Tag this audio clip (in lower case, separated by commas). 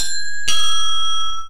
alarm, doorbell, home sounds, door